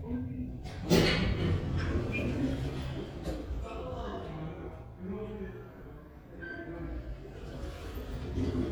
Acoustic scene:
elevator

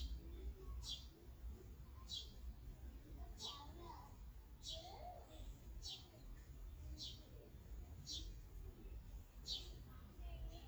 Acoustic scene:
park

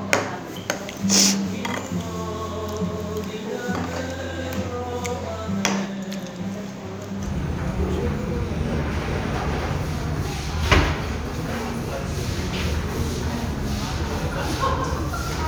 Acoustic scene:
restaurant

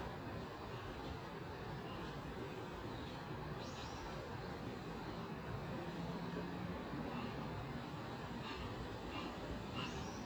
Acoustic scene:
park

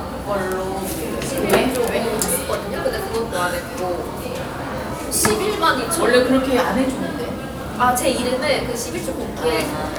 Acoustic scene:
cafe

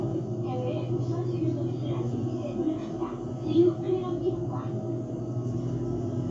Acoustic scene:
bus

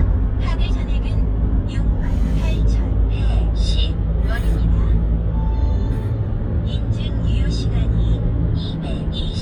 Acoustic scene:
car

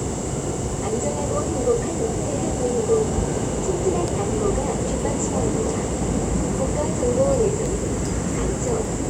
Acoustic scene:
subway train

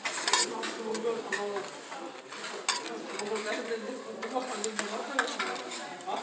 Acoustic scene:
kitchen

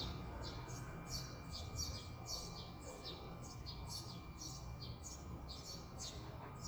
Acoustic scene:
residential area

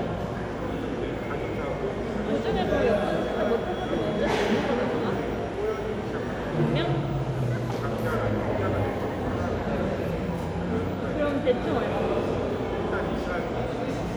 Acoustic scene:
crowded indoor space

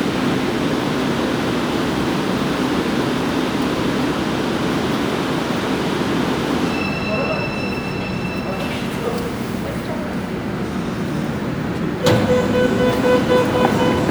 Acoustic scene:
subway station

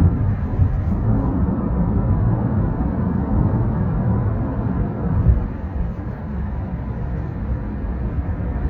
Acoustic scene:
car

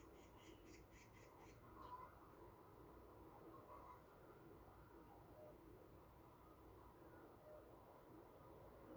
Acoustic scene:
park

